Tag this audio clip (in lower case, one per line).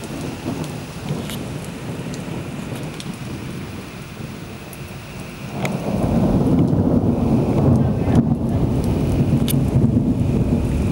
thunderstorm
raindrop
rain
thunder
raining